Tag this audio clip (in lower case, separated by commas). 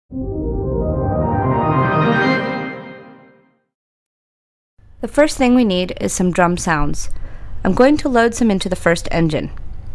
organ